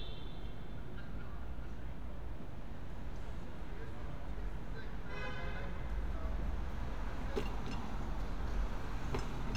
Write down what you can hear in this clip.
medium-sounding engine, car horn, person or small group talking